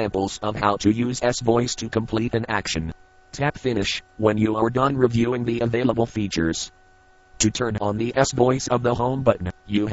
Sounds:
Speech synthesizer, Speech

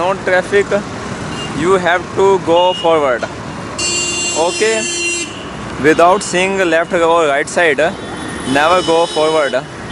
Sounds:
Traffic noise, Motor vehicle (road), Motorcycle, Vehicle, Speech

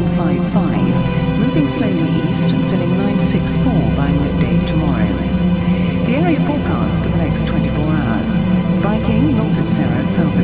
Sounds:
Music, Speech

